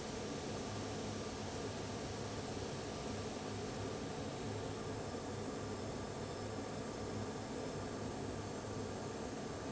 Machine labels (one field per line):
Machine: fan